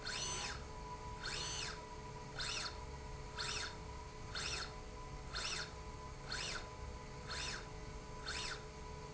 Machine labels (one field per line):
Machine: slide rail